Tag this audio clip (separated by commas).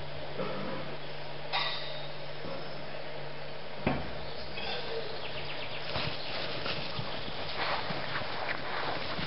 Animal